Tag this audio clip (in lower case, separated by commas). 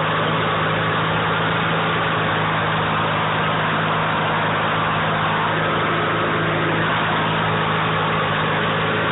vehicle, outside, rural or natural